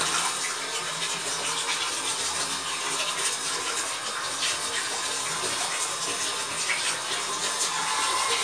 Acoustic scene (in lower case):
restroom